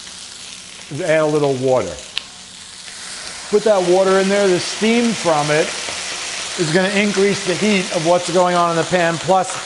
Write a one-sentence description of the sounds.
A man speaks as food sizzles